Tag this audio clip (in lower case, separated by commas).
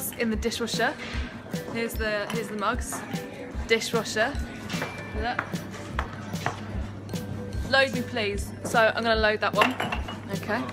speech, music, inside a public space